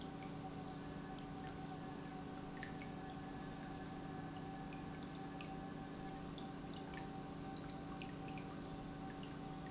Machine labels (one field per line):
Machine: pump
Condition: normal